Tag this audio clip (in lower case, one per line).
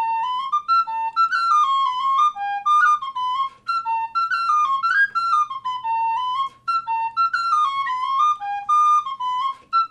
whistle